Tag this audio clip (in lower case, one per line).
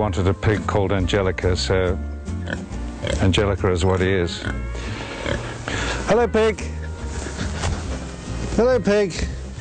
speech
music